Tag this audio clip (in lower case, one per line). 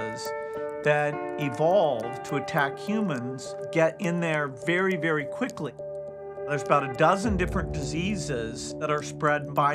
music
speech